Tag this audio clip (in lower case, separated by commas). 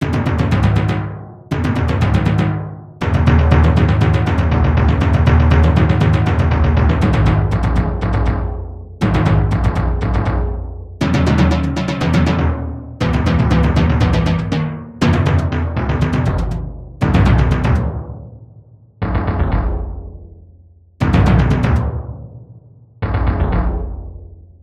musical instrument, music, drum, percussion